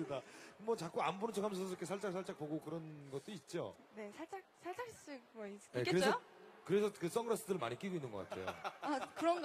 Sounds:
speech

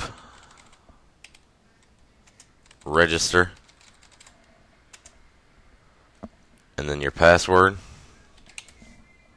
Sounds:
computer keyboard, speech, typing

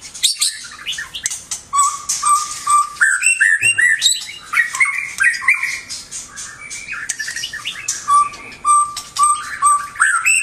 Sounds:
chirp, bird, bird vocalization, bird chirping

